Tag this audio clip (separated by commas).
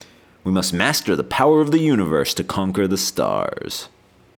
man speaking, Human voice, Speech